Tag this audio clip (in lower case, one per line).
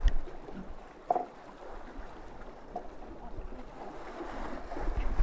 ocean
waves
water